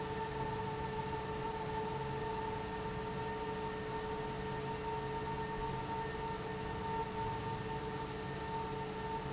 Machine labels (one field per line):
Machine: fan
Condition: abnormal